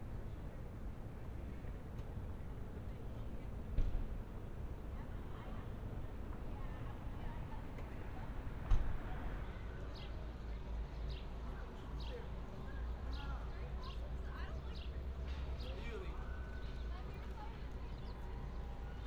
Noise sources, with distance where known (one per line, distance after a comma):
unidentified human voice